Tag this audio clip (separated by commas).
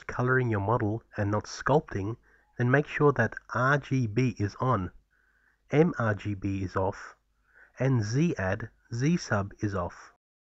Speech